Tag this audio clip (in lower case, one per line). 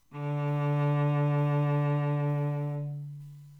bowed string instrument
music
musical instrument